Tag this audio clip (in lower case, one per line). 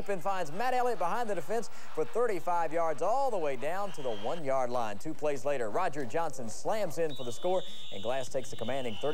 speech